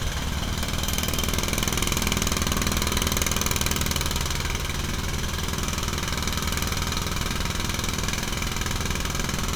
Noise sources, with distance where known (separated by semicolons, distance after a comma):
jackhammer, near